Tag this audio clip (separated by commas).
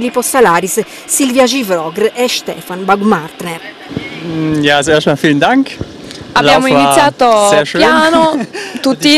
Speech, outside, urban or man-made